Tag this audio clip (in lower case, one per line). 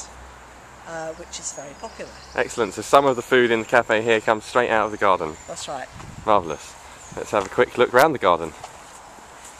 speech